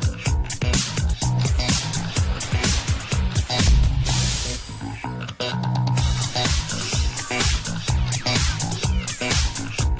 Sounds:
music

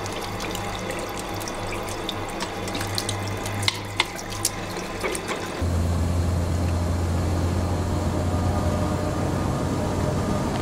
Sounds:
faucet
water
sink (filling or washing)

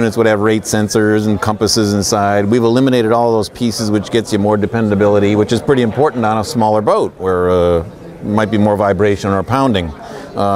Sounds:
speech

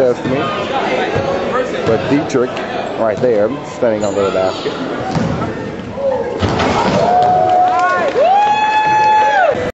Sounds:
speech

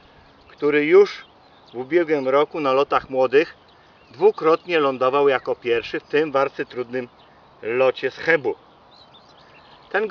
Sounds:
dove
outside, rural or natural
man speaking
speech

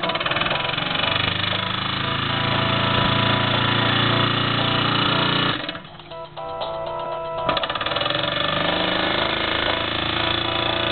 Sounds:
music
engine

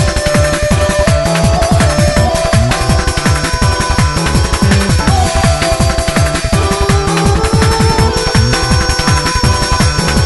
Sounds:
music
video game music
theme music

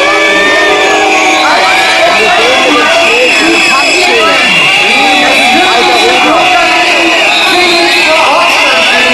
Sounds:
people booing

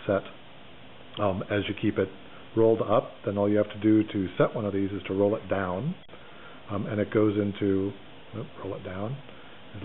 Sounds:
speech

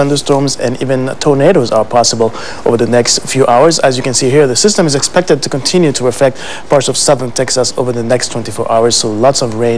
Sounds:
speech

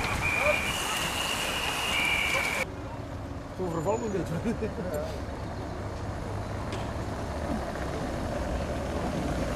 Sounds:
vehicle
speech

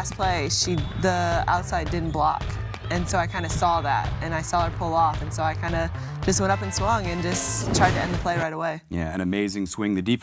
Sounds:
speech

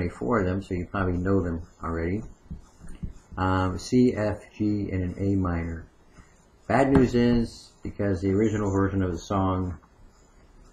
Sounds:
speech

